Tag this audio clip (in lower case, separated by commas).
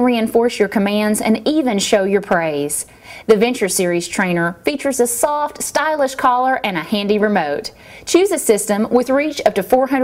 speech